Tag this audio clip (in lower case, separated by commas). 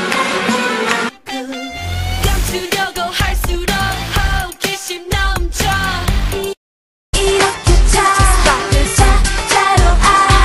music, female singing